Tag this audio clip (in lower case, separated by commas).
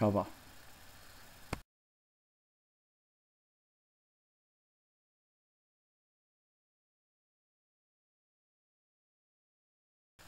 speech